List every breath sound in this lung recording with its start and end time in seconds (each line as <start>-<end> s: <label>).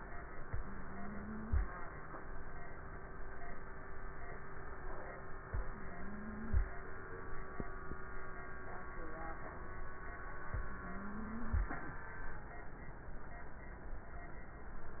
0.39-1.61 s: inhalation
0.39-1.61 s: wheeze
5.42-6.64 s: inhalation
5.69-6.64 s: wheeze
10.52-11.64 s: inhalation
10.68-11.64 s: wheeze